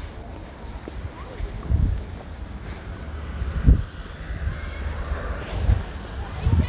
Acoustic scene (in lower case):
residential area